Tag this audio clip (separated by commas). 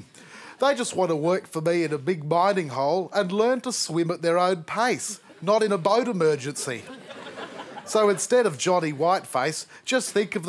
Speech